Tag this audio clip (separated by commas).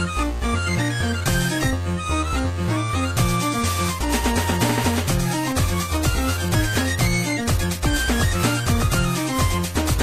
Music